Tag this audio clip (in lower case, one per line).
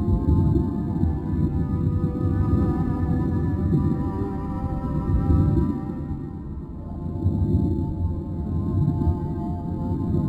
music